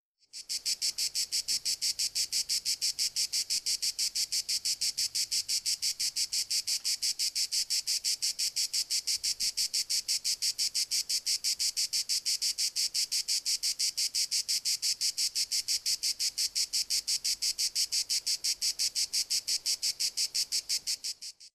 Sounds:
animal, wild animals, insect

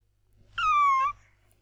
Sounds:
cat, domestic animals, animal, meow

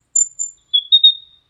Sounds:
animal, wild animals, chirp, bird, bird song

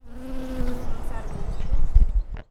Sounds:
wild animals, animal, insect

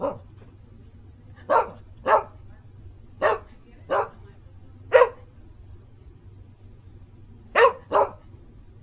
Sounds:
animal, pets, dog

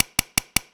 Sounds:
tools

